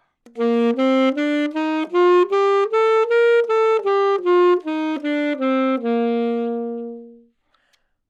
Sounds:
woodwind instrument, Music, Musical instrument

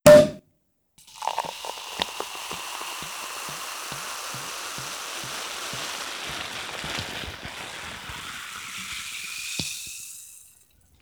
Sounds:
Liquid

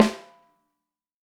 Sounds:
Percussion, Snare drum, Music, Musical instrument, Drum

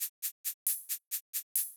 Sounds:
Music, Musical instrument, Percussion, Rattle (instrument)

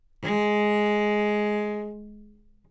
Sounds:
Music, Bowed string instrument, Musical instrument

